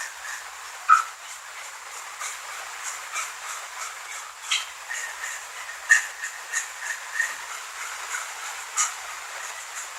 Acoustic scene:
restroom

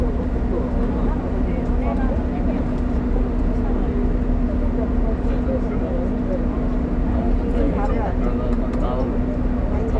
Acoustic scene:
bus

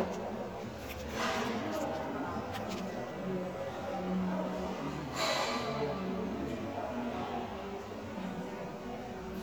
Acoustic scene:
crowded indoor space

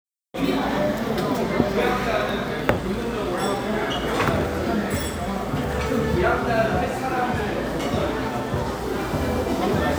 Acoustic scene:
restaurant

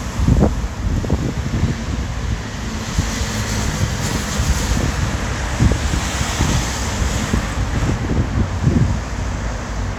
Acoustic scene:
street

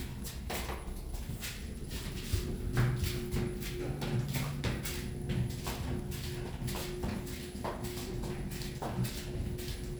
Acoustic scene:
elevator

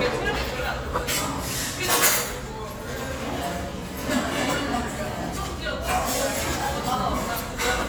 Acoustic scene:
restaurant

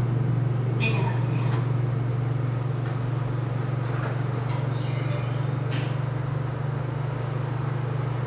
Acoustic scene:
elevator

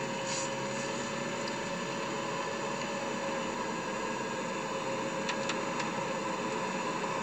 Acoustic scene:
car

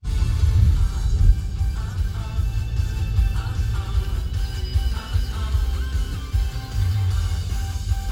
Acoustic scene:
car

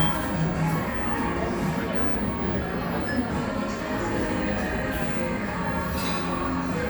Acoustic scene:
cafe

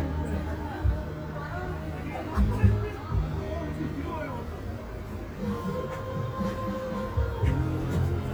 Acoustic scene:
park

